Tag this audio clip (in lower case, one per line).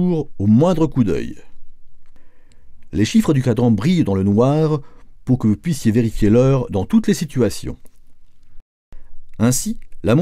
speech